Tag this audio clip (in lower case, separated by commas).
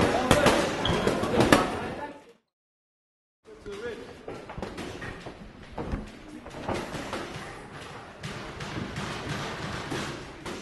speech, inside a large room or hall